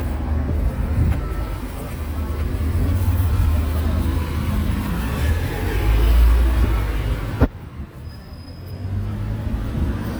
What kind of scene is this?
street